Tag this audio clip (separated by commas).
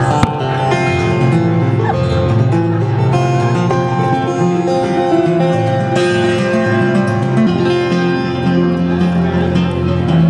Musical instrument, Music, Guitar, Plucked string instrument